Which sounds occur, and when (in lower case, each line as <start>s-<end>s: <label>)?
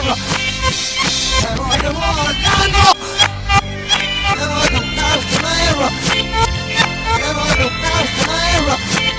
0.0s-0.1s: synthetic singing
0.0s-9.1s: music
1.3s-2.9s: synthetic singing
4.3s-4.8s: synthetic singing
4.9s-5.9s: synthetic singing
7.0s-8.8s: synthetic singing